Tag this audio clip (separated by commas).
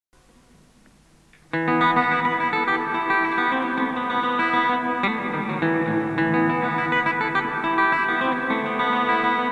Plucked string instrument, Acoustic guitar, Guitar, Music, Musical instrument, Effects unit